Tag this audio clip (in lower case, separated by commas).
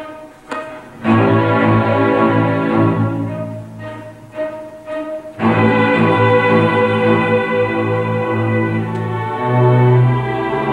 musical instrument, fiddle, music